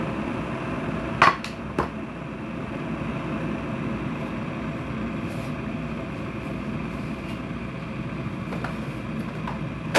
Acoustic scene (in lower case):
kitchen